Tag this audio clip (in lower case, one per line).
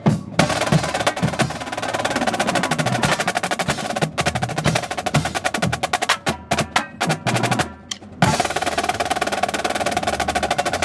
wood block
music